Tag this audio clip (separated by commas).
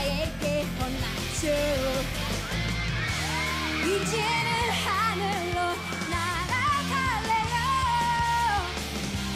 Pop music, Music, Background music